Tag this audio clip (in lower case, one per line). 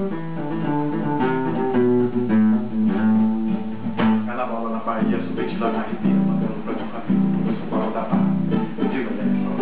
strum
music
musical instrument
plucked string instrument
guitar
acoustic guitar